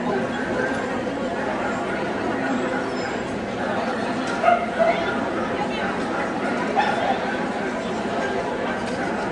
People and dogs heard in a distance